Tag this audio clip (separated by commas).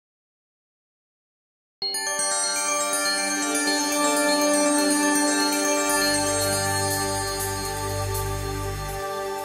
Glockenspiel